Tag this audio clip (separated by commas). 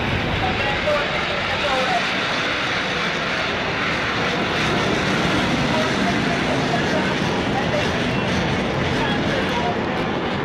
Fixed-wing aircraft, Vehicle, Aircraft, outside, rural or natural, Speech